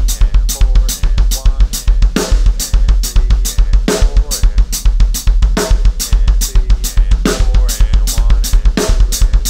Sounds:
playing bass drum

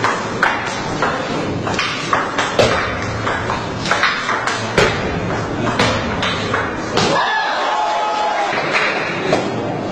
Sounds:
playing table tennis

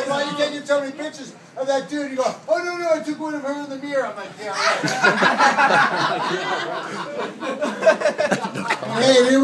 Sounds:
speech

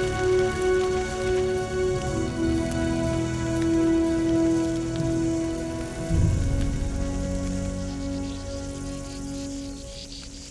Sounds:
fire

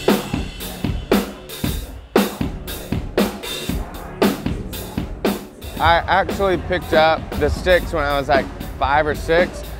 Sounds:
music, speech

